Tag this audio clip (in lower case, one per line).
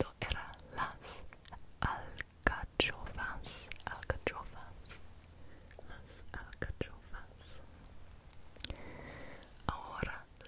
people whispering